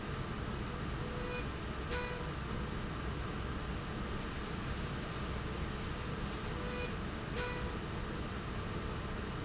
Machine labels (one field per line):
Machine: slide rail